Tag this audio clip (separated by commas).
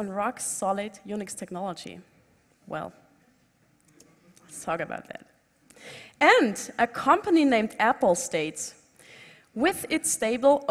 Speech